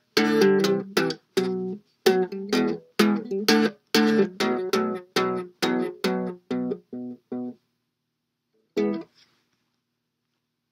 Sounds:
musical instrument, music, guitar, ukulele, plucked string instrument

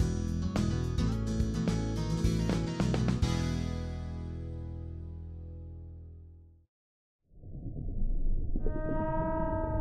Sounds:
music, whale vocalization

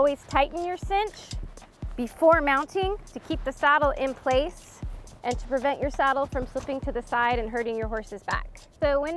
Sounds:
speech, music

